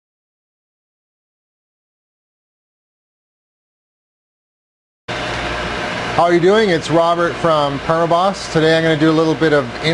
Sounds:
inside a large room or hall, silence, speech

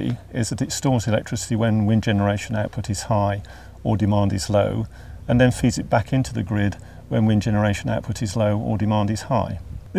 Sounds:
speech

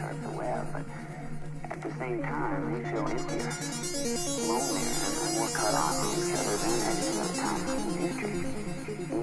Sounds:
music, speech

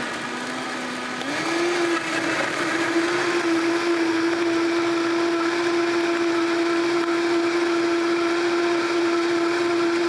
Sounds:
inside a small room, blender

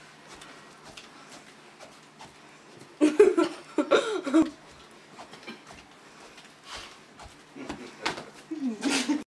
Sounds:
walk

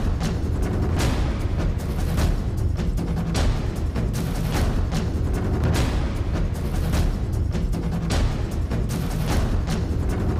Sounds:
music

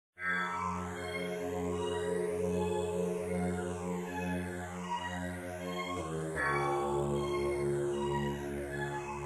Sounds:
didgeridoo

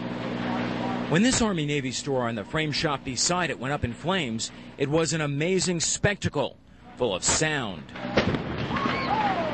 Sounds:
speech

